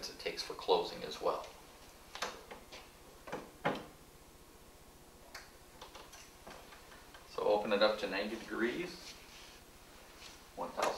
A man is speaking and closes a door